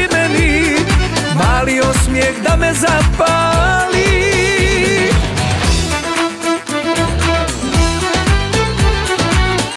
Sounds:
music, pop music

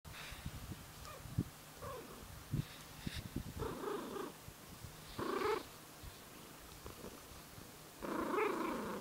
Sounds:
snort, animal, purr, pets, cat purring, cat

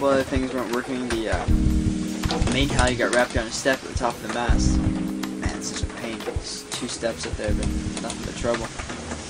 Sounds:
boat, vehicle, music, speech

